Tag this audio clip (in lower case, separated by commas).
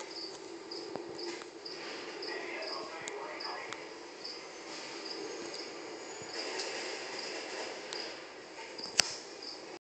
speech